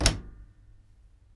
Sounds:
domestic sounds, door, slam

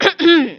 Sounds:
cough, human voice, respiratory sounds

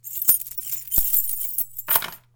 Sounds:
keys jangling, domestic sounds

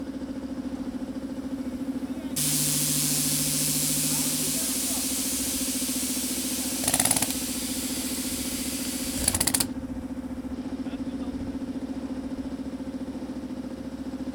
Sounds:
tools

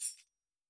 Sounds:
musical instrument, music, tambourine, percussion

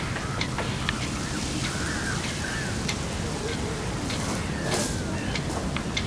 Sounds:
wind, boat, vehicle

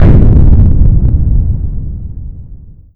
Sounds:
boom, explosion

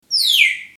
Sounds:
bird, animal, wild animals

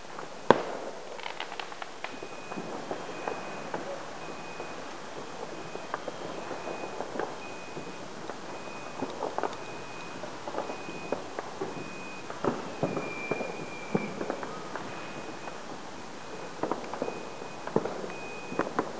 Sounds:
fireworks, explosion

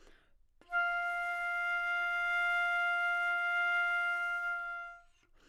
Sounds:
wind instrument, music, musical instrument

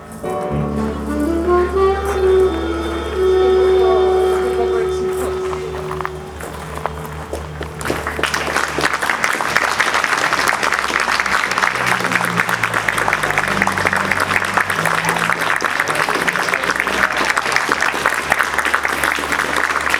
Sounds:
applause, human group actions

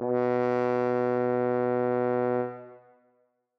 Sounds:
bowed string instrument, musical instrument, music

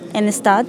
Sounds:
human voice, speech

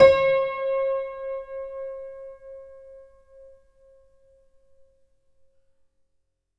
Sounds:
keyboard (musical), piano, music, musical instrument

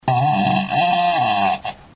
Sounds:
fart

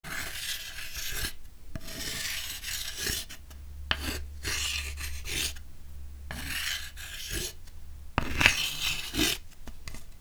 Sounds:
domestic sounds, writing

